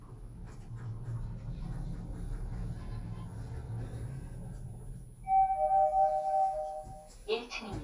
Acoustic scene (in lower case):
elevator